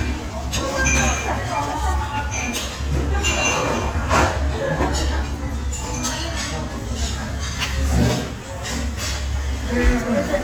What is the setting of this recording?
crowded indoor space